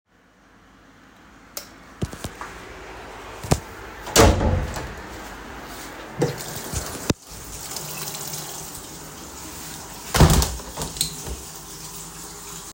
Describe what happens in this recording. went to wash my face but to close the window beforehand , did the normal aswell switched the light on and closed the door